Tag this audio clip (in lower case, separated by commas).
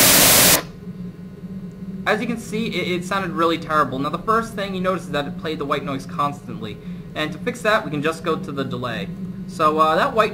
speech, sound effect